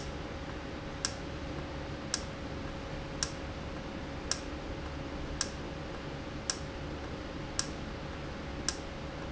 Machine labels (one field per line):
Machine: valve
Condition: normal